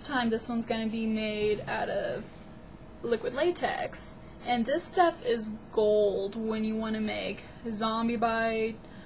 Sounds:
Speech

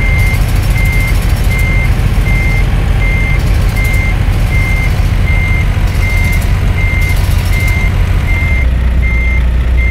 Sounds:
Reversing beeps, Vehicle, Truck

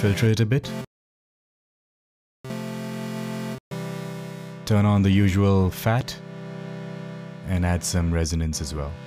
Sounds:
Music, Speech

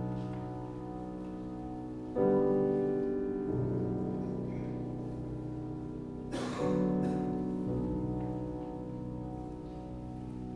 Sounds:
Music

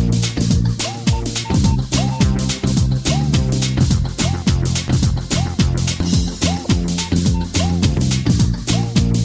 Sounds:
Music

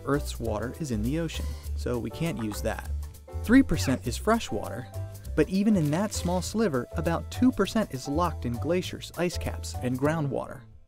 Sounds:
Music, Speech

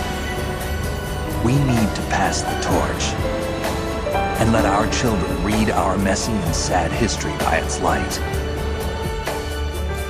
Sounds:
man speaking, Speech, Music

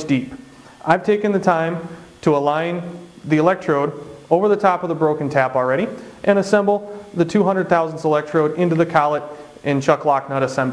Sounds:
Speech

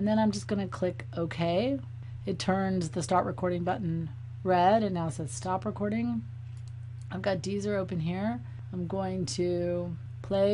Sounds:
Speech

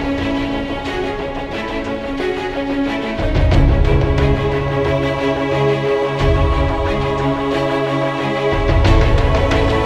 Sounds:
Music, Sound effect

